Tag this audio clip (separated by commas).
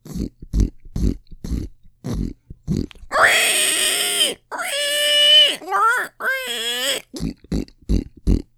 livestock, Animal